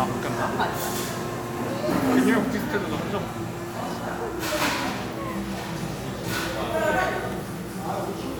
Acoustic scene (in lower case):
cafe